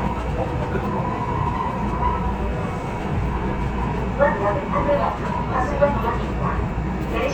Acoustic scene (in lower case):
subway train